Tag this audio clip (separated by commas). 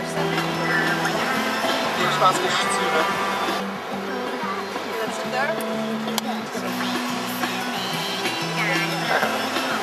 Music, Speech